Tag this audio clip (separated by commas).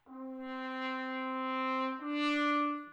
Musical instrument, Music, Brass instrument